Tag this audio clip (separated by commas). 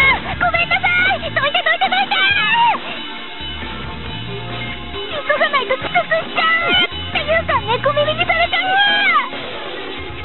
Music, Speech